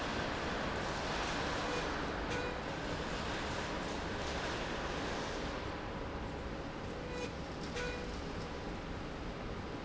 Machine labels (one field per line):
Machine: slide rail